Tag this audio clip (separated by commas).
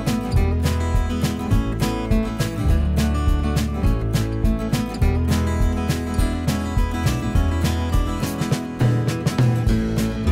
Music